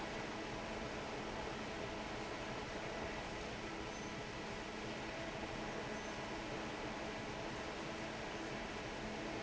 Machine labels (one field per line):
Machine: fan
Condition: normal